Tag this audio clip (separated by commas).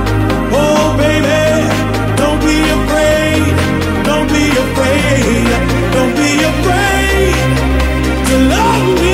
House music